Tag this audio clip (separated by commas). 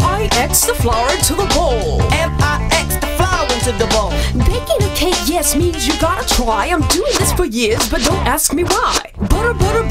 Speech, Music